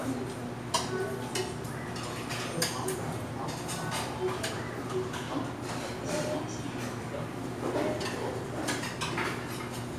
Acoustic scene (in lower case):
restaurant